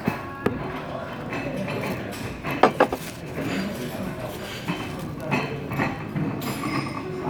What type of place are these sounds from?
crowded indoor space